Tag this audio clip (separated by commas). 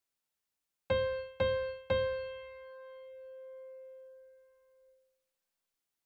Piano, Keyboard (musical), Music, Musical instrument